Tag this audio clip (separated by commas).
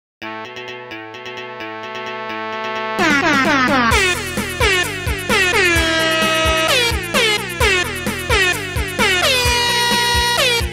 Air horn, Music